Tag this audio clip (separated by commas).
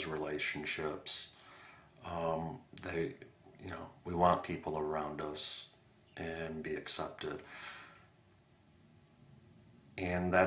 inside a small room, Speech